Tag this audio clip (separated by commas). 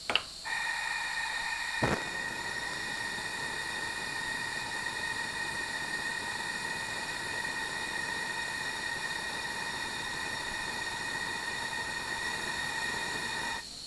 Fire